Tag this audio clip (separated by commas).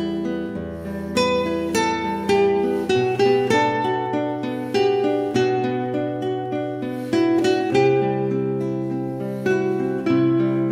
Music, Plucked string instrument, Guitar, Strum, Musical instrument, Acoustic guitar